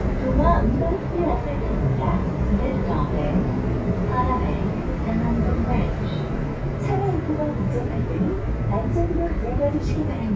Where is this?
on a bus